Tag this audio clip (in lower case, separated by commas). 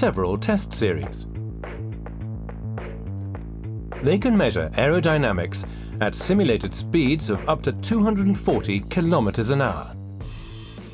music, speech